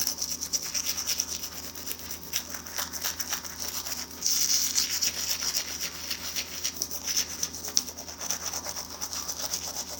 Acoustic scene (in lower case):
restroom